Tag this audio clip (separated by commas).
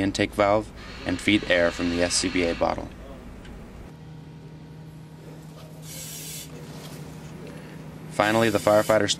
Speech